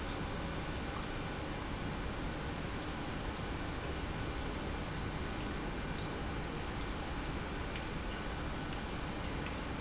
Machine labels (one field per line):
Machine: pump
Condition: normal